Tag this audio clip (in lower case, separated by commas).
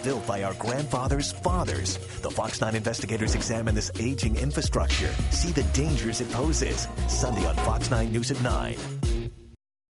speech, music